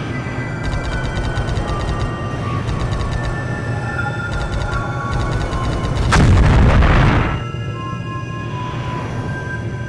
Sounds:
scary music, music

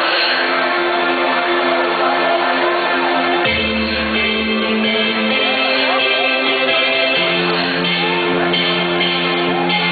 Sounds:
tender music, music

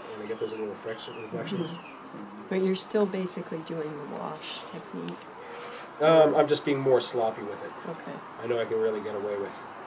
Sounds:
speech

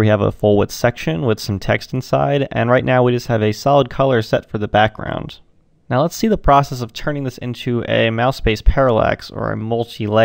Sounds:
speech

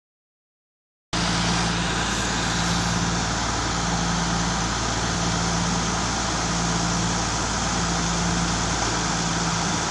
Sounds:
vehicle, truck

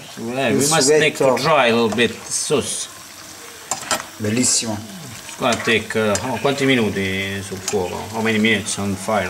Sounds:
stir, frying (food)

